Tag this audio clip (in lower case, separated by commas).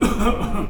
respiratory sounds, cough